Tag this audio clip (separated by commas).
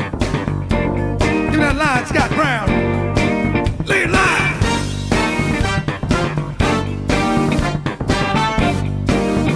Music, Musical instrument, Funk